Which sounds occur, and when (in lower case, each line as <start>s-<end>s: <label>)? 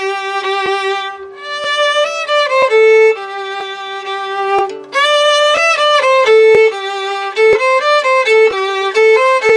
0.0s-9.5s: music